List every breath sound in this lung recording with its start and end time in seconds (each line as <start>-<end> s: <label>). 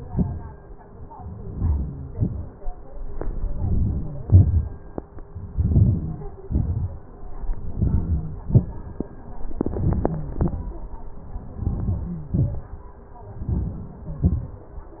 1.52-2.12 s: inhalation
2.19-2.62 s: exhalation
3.61-4.20 s: inhalation
4.31-4.77 s: exhalation
5.62-6.39 s: inhalation
6.49-7.01 s: exhalation
7.80-8.34 s: inhalation
8.43-8.83 s: exhalation
9.59-10.23 s: inhalation
10.41-10.80 s: exhalation
11.63-12.26 s: inhalation
12.32-12.80 s: exhalation
13.44-14.06 s: inhalation
14.15-14.64 s: exhalation